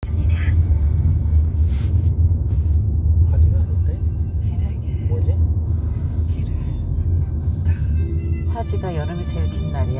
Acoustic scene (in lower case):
car